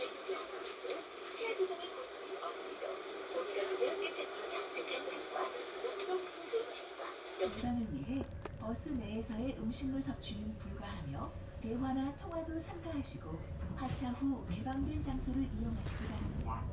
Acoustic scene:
bus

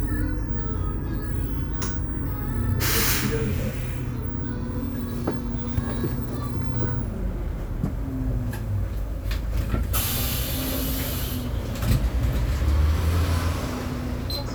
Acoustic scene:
bus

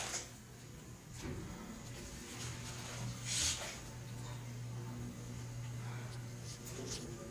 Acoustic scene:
elevator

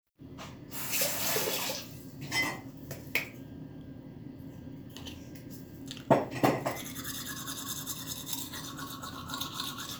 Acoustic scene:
restroom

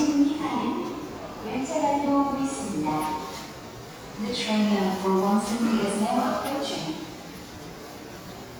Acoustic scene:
subway station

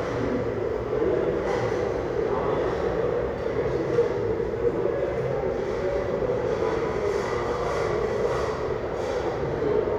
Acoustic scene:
restaurant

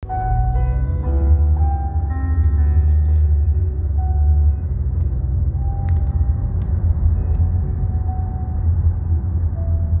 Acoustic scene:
car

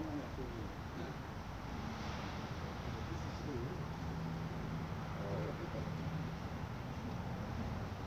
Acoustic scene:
residential area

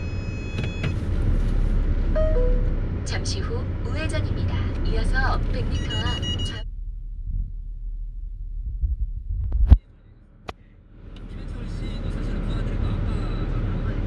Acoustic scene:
car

